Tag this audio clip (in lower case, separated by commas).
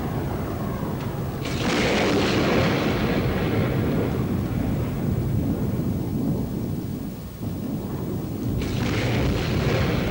music